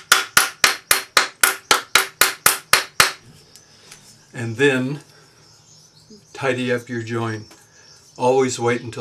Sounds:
Hammer

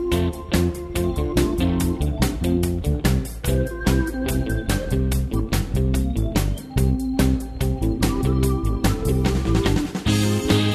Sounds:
Music

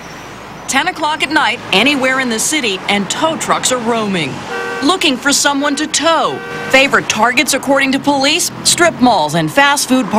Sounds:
Car, Vehicle, Speech

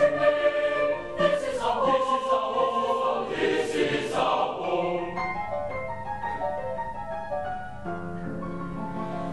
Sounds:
Choir, Music

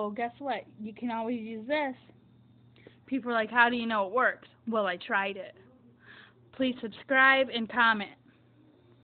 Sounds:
Speech

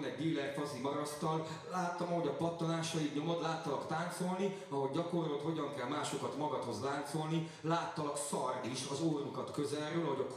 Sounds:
Speech

